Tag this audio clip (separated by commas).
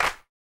Clapping, Hands